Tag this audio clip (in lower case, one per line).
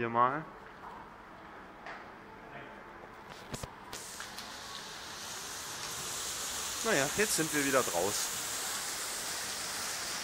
speech